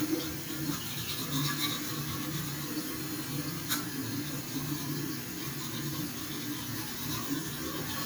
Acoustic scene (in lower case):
restroom